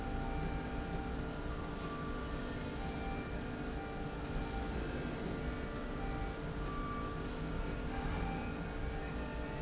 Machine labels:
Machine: slide rail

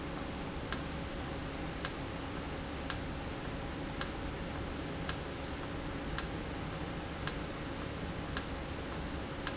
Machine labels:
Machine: valve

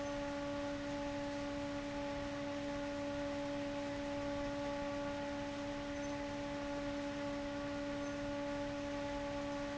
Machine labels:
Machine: fan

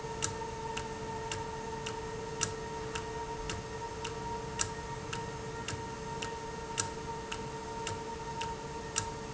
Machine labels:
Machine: valve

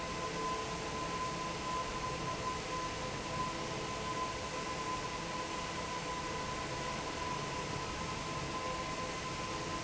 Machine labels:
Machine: fan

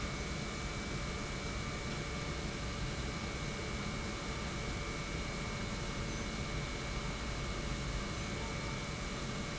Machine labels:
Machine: pump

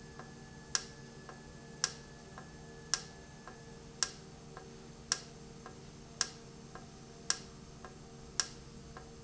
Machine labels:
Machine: valve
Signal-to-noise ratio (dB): 6 dB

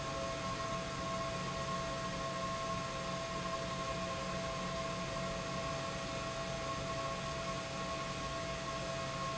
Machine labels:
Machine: pump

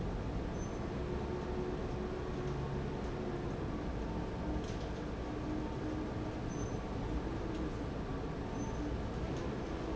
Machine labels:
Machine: fan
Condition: abnormal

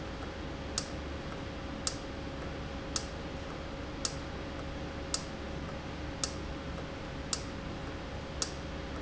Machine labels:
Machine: valve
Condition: normal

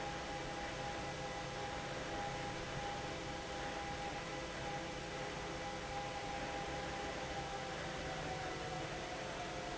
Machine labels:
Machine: fan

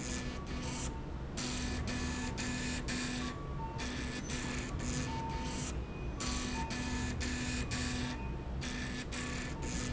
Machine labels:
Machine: slide rail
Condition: abnormal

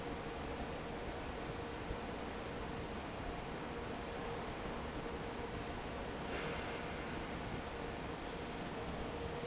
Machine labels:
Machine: fan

